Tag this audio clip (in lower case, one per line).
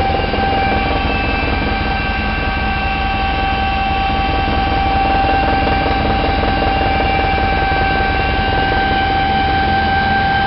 vehicle
helicopter
aircraft